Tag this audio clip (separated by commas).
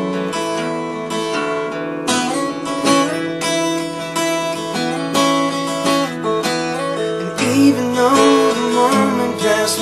Male singing, Music